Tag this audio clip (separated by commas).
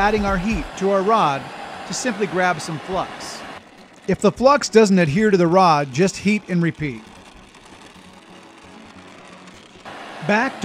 Music, Speech